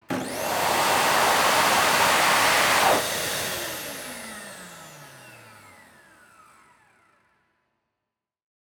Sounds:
home sounds

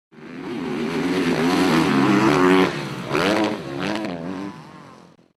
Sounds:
Motor vehicle (road), Vehicle, Motorcycle

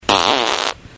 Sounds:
Fart

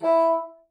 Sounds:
Musical instrument, Wind instrument, Music

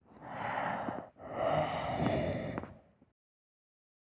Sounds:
Breathing, Respiratory sounds

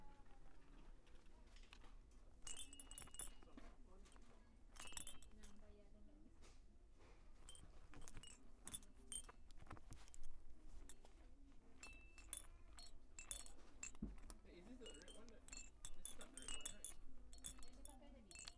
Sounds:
Chink, Glass

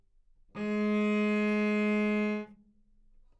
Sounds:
Musical instrument, Music, Bowed string instrument

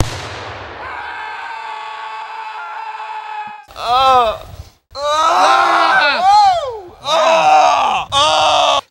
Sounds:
Screaming, Human voice

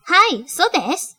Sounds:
Human voice, woman speaking, Speech

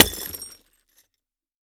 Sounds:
Glass, Shatter, Crushing

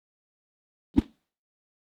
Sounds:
swoosh

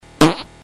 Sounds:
Fart

